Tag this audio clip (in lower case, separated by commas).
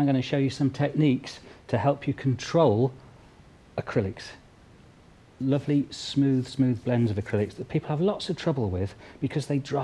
speech